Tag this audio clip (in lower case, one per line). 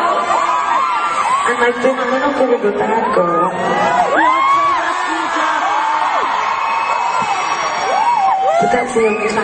speech
whoop